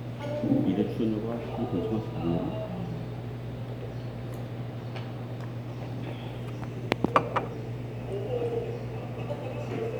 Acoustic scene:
restaurant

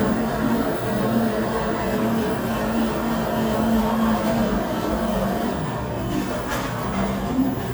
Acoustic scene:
cafe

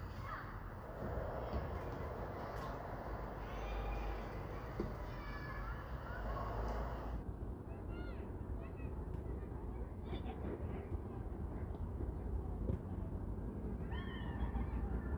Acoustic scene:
residential area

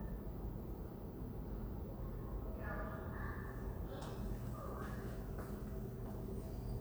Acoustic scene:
elevator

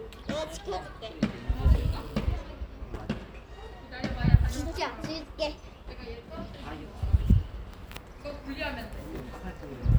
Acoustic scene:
park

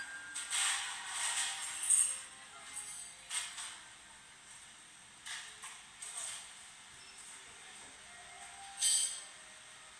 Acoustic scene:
cafe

